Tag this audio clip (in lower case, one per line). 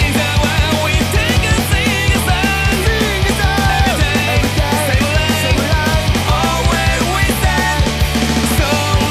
music